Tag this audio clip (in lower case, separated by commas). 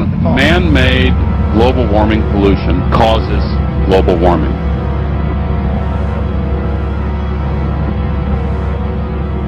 inside a large room or hall, music, speech